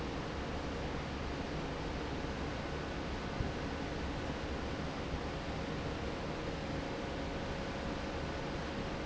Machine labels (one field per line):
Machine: fan